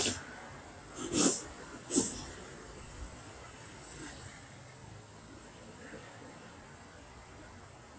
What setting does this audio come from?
street